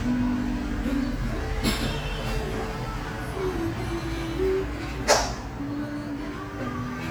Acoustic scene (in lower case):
cafe